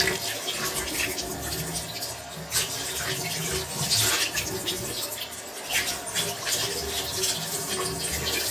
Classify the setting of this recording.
restroom